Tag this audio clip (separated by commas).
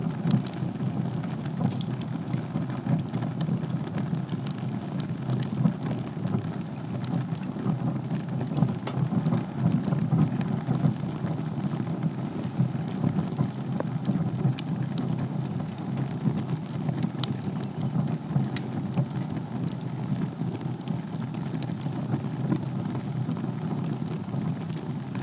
Fire